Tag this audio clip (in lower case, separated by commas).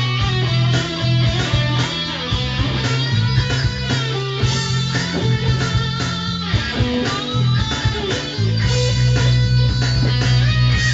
music